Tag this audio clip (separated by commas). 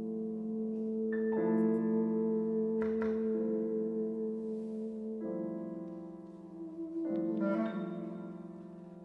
Brass instrument, Trombone